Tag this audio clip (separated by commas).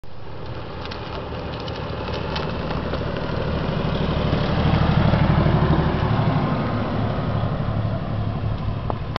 Vehicle, Car